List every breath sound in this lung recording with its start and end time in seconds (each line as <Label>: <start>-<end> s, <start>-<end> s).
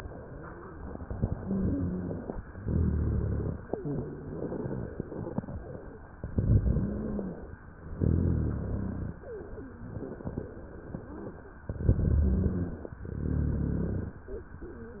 Inhalation: 1.22-2.32 s, 6.30-7.40 s, 11.74-12.94 s
Exhalation: 2.52-3.72 s, 7.97-9.17 s, 13.04-14.23 s
Wheeze: 1.22-2.32 s, 6.70-7.40 s, 12.01-12.94 s
Rhonchi: 2.52-3.72 s, 7.97-9.17 s, 13.04-14.23 s